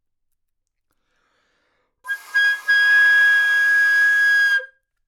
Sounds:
Musical instrument, Wind instrument, Music

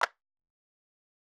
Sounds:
Clapping, Hands

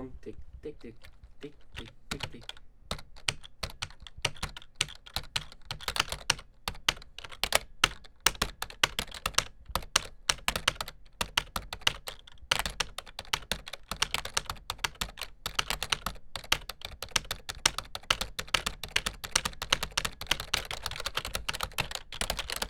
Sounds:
Typing, home sounds

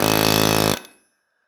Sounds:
Tools

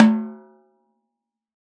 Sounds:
Music, Musical instrument, Percussion, Drum, Snare drum

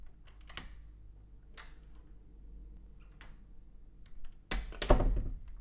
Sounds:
home sounds, Door

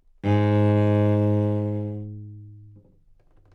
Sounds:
Music, Bowed string instrument, Musical instrument

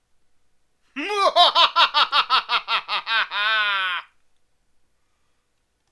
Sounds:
Human voice, Laughter

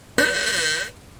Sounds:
Fart

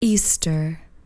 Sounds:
Speech, woman speaking, Human voice

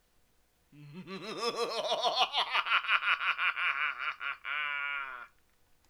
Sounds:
Human voice, Laughter

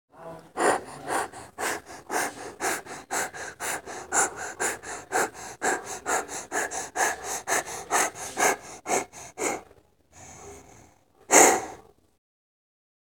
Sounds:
Domestic animals, Dog, Animal

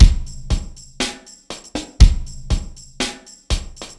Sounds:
Percussion, Drum kit, Musical instrument, Music

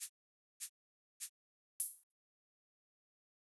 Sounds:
Rattle (instrument), Percussion, Musical instrument, Music

